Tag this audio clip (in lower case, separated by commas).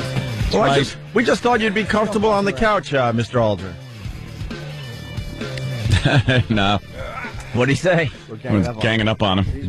speech, music